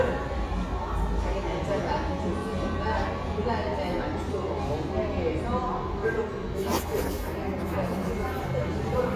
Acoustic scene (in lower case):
cafe